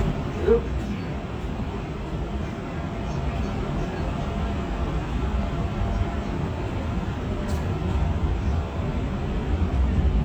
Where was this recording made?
on a subway train